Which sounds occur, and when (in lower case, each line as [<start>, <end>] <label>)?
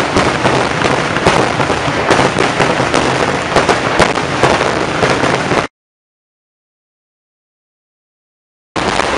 [0.00, 5.67] firecracker